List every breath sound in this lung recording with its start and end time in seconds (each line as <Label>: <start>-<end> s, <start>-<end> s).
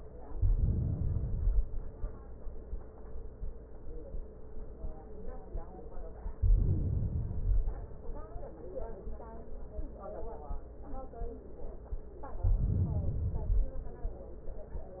Inhalation: 0.26-1.81 s, 6.37-7.83 s, 12.34-13.81 s